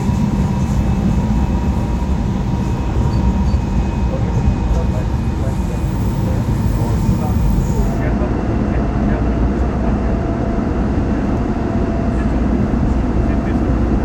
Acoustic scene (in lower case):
subway train